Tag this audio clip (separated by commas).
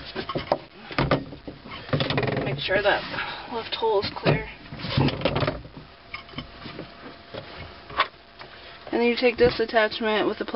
Speech